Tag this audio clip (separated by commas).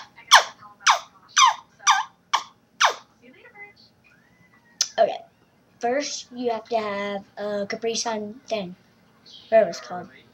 Speech